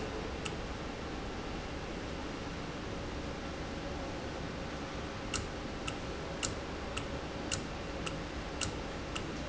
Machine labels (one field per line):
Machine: valve